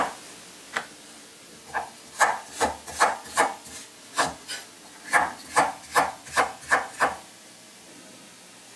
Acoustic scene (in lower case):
kitchen